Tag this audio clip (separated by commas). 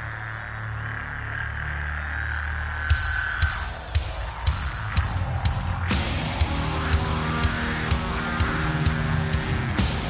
Music